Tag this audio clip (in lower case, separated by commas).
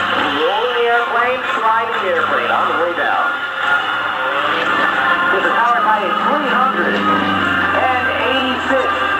music, speech